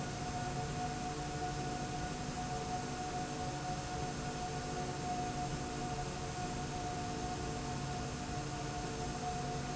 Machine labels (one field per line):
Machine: slide rail